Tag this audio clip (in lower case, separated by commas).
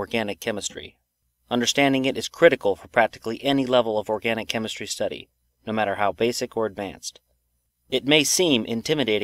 monologue